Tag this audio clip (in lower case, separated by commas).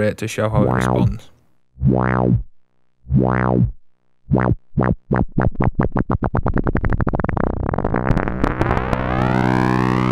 music, synthesizer, speech